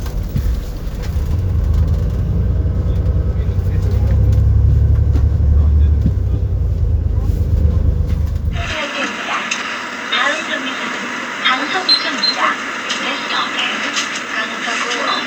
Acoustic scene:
bus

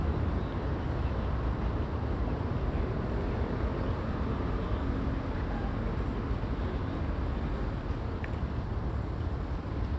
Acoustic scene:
residential area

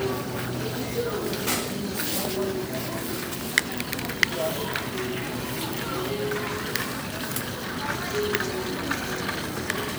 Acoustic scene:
crowded indoor space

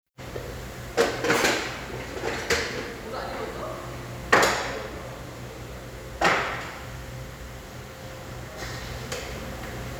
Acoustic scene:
restaurant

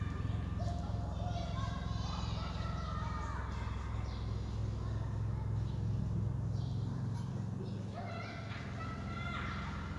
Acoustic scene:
park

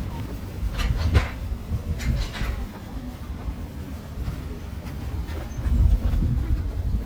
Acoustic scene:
residential area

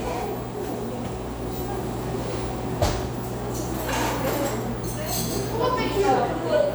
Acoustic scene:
cafe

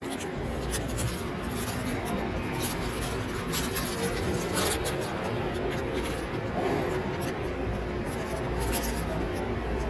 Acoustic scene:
subway station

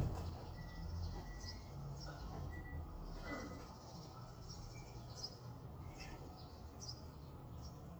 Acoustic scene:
residential area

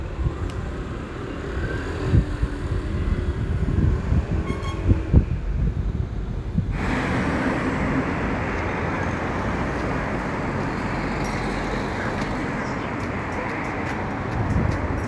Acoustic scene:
street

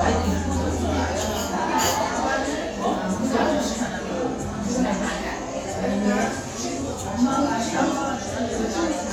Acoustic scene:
restaurant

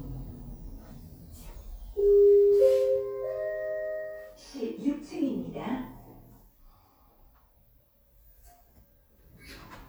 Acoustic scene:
elevator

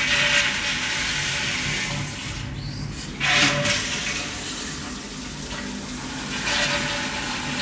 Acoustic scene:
restroom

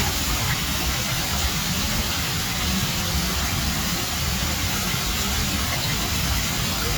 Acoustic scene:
park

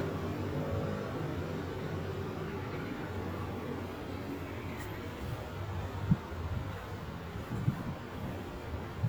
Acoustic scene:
residential area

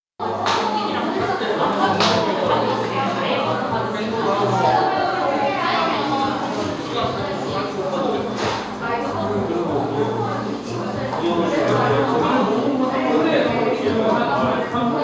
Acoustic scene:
cafe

